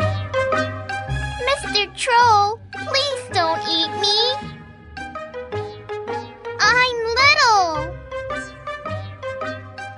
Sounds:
speech, music

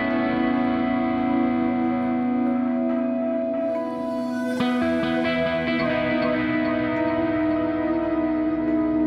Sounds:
music, distortion

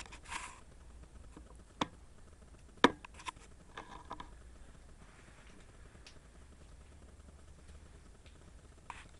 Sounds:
speech

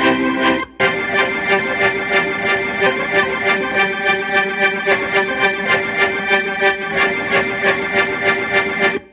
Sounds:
music

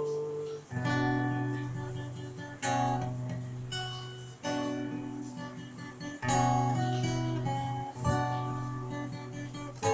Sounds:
music, musical instrument, guitar

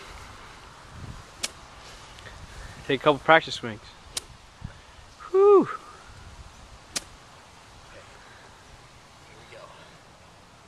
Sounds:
speech, outside, urban or man-made

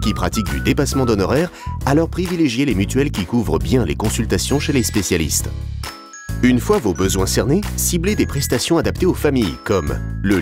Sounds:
speech, music

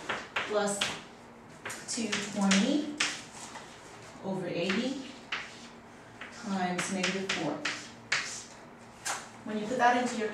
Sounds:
inside a small room, speech

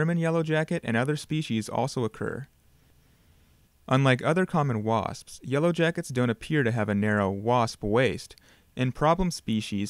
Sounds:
speech

